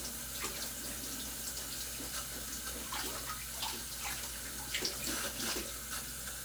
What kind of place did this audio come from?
kitchen